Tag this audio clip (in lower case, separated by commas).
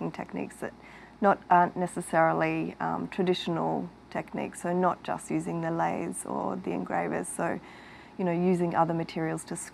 speech